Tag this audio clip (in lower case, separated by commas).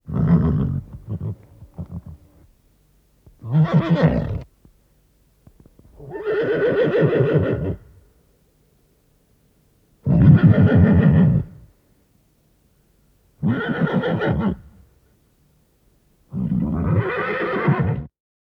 animal, livestock